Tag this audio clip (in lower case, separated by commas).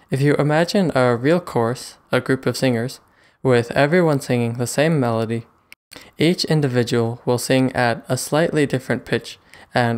speech